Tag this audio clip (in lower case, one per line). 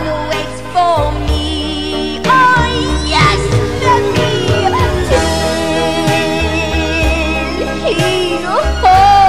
music